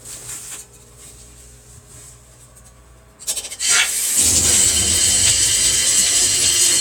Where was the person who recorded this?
in a kitchen